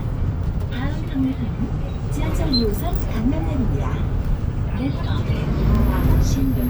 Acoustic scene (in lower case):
bus